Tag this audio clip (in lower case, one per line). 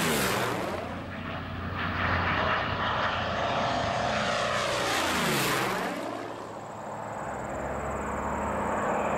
airplane flyby